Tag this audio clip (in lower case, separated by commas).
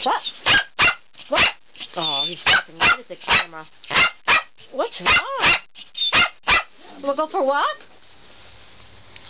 speech, animal, domestic animals, bark, dog